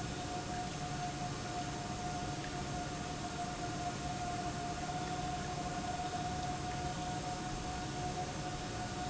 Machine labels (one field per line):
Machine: pump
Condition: normal